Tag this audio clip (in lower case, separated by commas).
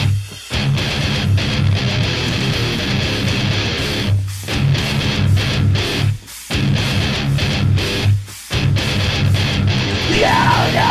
music, bass guitar, electric guitar, musical instrument, guitar